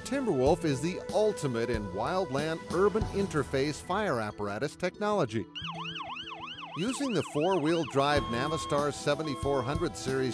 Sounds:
Emergency vehicle, Speech, Music, Fire engine

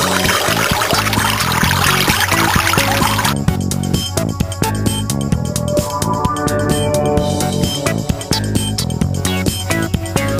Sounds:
Gurgling, Music

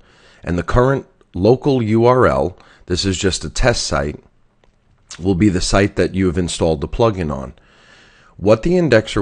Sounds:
Speech

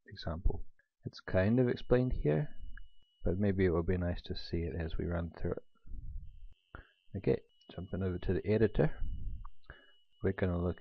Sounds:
Speech

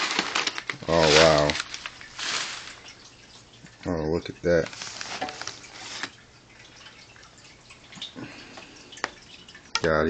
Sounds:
Speech, inside a small room

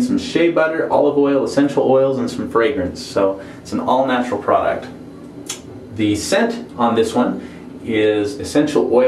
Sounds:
Speech

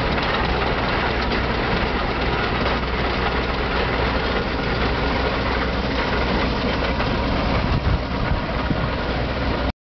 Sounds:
Idling, Vehicle, Engine

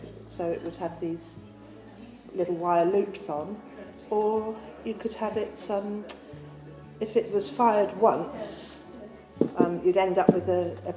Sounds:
Music, Speech

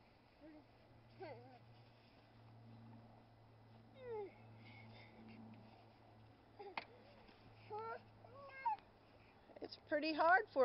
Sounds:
Child speech, Speech

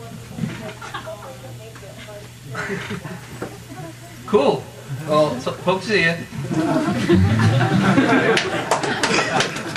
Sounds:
Speech

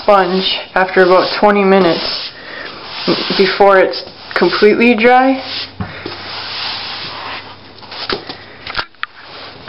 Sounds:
Rub

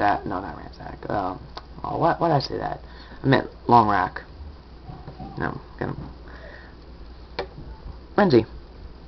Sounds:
Speech

